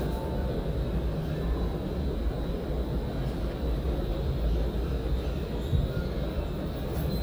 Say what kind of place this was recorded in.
subway station